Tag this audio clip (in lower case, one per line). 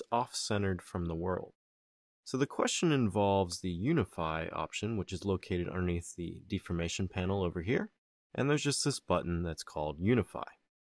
speech